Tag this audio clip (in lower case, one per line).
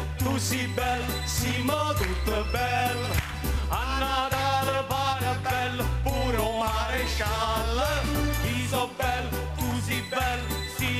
music